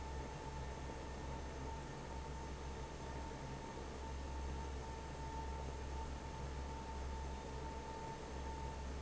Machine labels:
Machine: fan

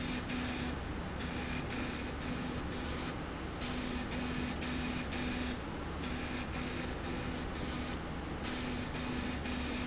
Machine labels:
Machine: slide rail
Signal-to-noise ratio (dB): -6 dB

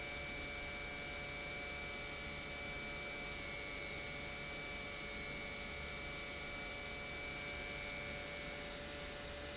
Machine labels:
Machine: pump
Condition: normal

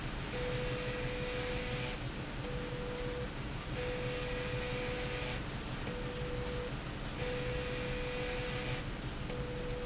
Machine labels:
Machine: slide rail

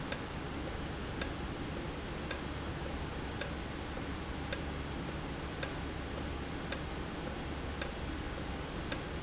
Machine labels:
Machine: valve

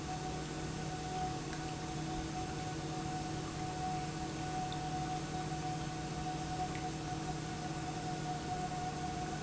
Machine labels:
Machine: pump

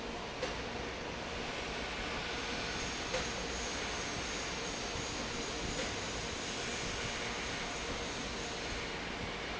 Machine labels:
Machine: fan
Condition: normal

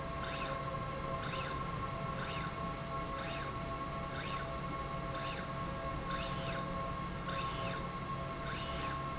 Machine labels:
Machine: slide rail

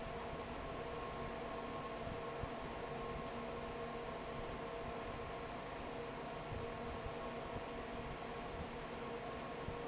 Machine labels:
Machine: fan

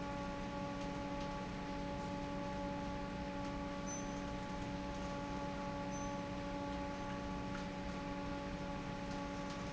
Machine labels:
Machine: fan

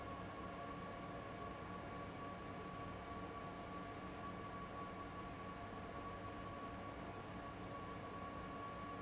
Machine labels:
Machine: fan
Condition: abnormal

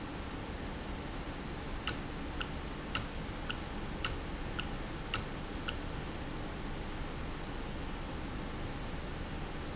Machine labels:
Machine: valve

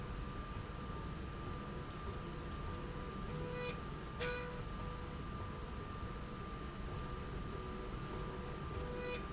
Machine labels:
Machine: slide rail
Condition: normal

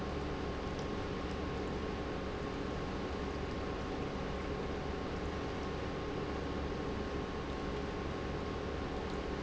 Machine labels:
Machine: pump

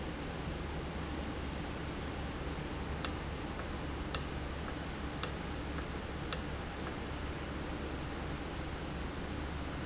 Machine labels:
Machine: valve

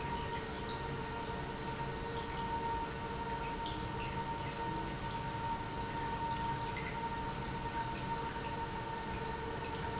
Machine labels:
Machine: pump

